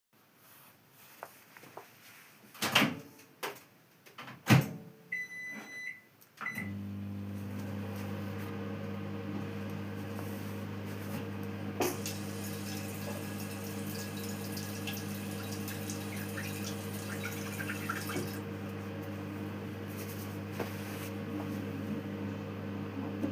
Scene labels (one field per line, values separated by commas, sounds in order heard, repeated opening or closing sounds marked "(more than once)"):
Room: kitchen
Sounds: microwave, running water